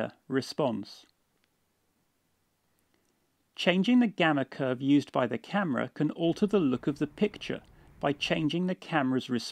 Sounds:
Speech

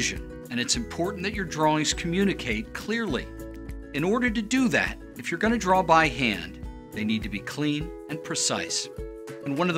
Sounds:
Music, Speech

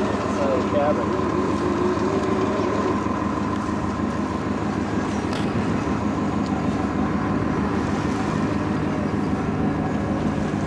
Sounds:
Speech

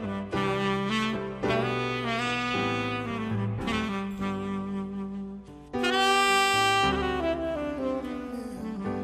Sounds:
Saxophone, Music, playing saxophone, Musical instrument

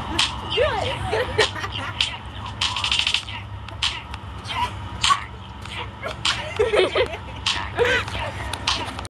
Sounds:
Speech, Music

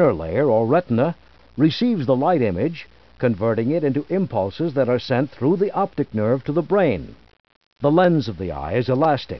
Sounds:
Speech

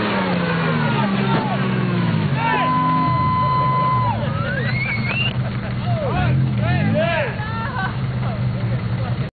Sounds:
Vehicle, Car, Speech

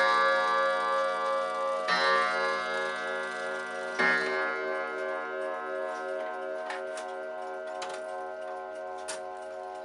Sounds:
Tick-tock

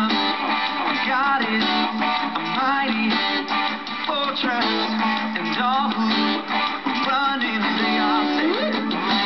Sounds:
Guitar, Strum, Plucked string instrument, Music, Musical instrument, Electric guitar

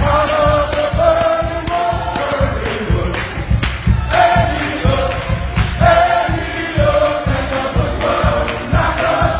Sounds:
Tambourine, Musical instrument, Music

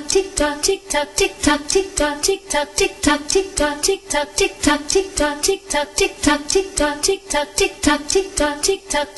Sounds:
Tick

